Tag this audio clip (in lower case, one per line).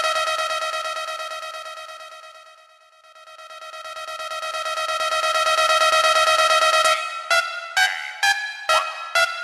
music